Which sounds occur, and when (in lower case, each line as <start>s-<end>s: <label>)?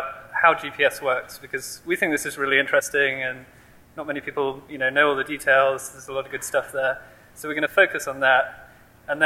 0.0s-0.4s: brief tone
0.0s-9.2s: mechanisms
0.4s-1.7s: man speaking
0.4s-9.2s: narration
1.9s-3.4s: man speaking
3.4s-3.8s: breathing
4.0s-4.5s: man speaking
4.7s-7.0s: man speaking
7.0s-7.3s: breathing
7.4s-8.5s: man speaking
8.5s-8.8s: breathing